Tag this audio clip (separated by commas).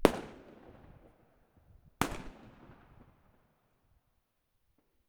Fireworks, Explosion